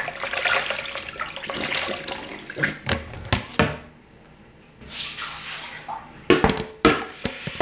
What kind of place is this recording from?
restroom